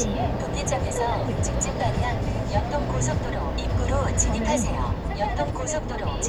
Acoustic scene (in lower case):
car